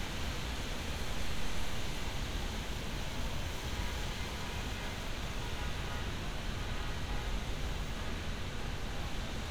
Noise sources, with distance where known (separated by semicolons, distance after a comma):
unidentified alert signal